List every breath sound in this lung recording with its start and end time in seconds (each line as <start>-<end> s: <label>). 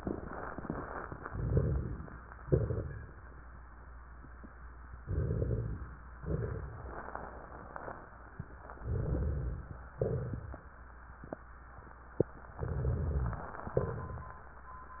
1.24-2.30 s: inhalation
1.24-2.30 s: crackles
2.44-3.51 s: exhalation
2.44-3.51 s: crackles
4.99-6.05 s: inhalation
5.00-6.01 s: rhonchi
6.21-7.06 s: rhonchi
6.22-7.03 s: exhalation
8.81-9.85 s: inhalation
8.82-9.83 s: rhonchi
10.01-10.76 s: exhalation
12.60-13.62 s: inhalation
12.60-13.62 s: rhonchi
13.68-14.44 s: exhalation
13.68-14.44 s: crackles